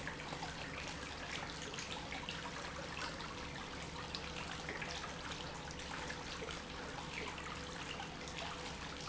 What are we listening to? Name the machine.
pump